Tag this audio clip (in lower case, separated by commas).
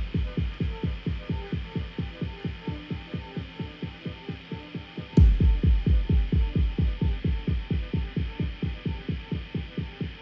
music